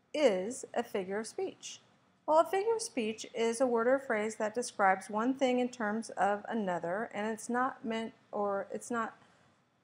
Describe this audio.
Women speaking continuously